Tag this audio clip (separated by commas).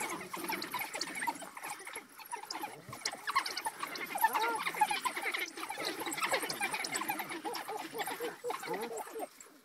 pets, Animal